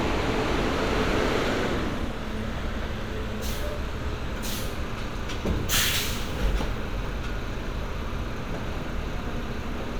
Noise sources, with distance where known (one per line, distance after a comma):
engine of unclear size, near